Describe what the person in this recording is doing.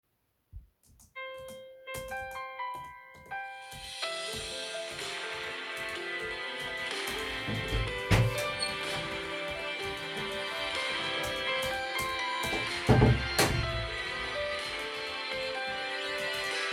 I was sitting at my desk typing on the laptop keyboard while my phone started ringing loudly next to me. During this time, another person opened and closed the office door. These three distinct sounds (typing, ringing, and the door movement) all overlapped clearly in the recording